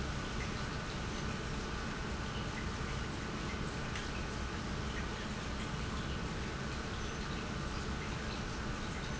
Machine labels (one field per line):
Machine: pump